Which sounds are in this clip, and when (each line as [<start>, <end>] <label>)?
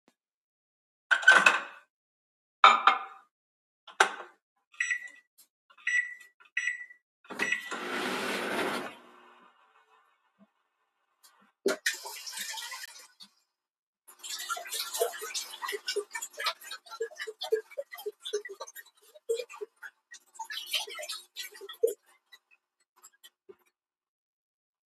[1.06, 9.05] microwave
[11.47, 22.11] running water